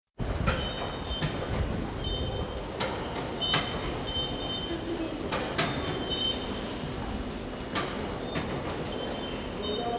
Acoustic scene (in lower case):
subway station